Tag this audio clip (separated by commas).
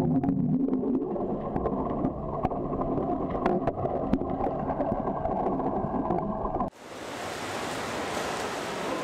swimming